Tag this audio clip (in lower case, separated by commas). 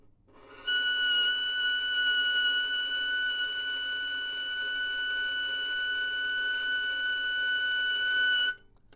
musical instrument, bowed string instrument, music